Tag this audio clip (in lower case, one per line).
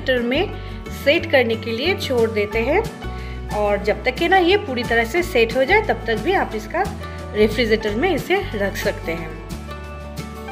ice cream van